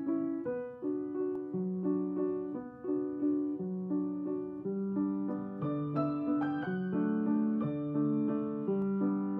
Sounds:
keyboard (musical)
piano

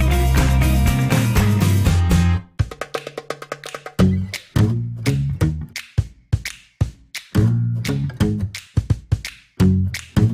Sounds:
music

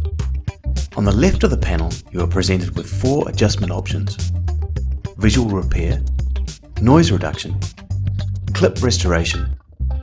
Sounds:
music
speech

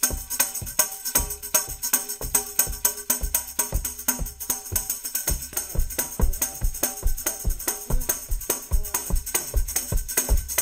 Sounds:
musical instrument
tambourine
music

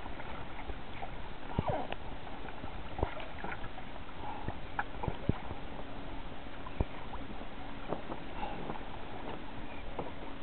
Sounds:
canoe
kayak rowing
vehicle
boat

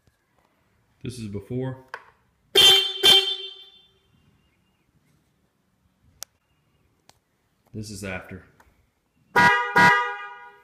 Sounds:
speech
car horn

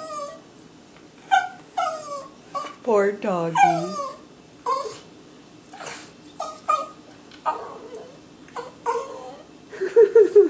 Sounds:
dog whimpering

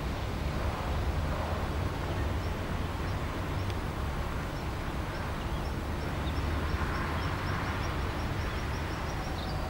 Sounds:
magpie calling

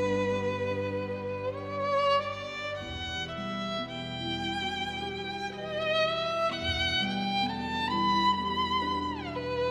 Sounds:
string section

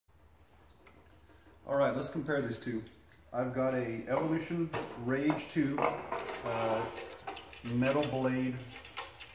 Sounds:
speech

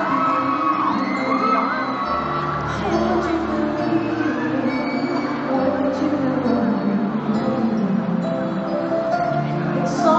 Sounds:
music

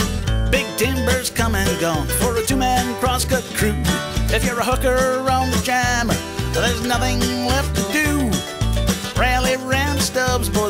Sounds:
rhythm and blues
music

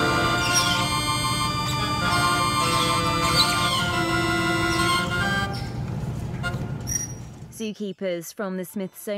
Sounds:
playing glockenspiel

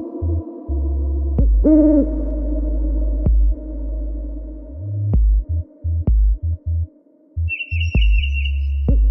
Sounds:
techno
electronic music
music

